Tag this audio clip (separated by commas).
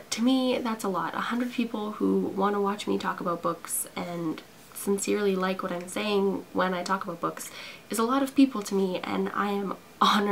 Speech